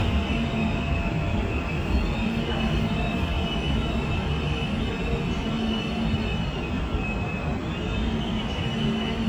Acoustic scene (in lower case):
subway train